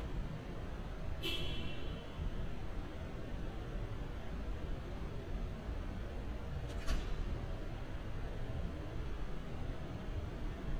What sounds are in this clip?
non-machinery impact, car horn